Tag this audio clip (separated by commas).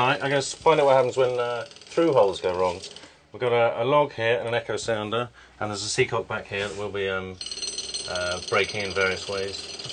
Speech